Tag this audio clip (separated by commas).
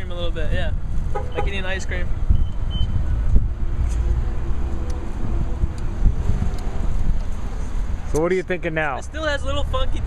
Car, Speech